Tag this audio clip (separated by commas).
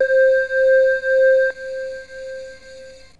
Musical instrument, Keyboard (musical), Music